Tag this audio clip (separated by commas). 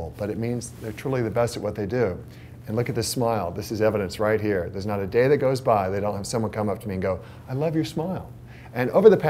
Speech